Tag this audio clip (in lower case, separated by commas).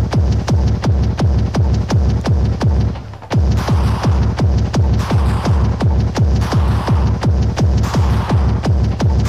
music